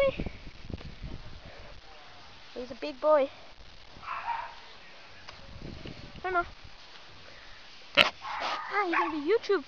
A girl speaking with wind blowing as a distant dog barks and pig oinks nearby